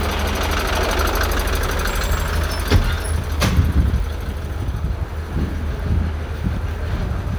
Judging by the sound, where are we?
in a residential area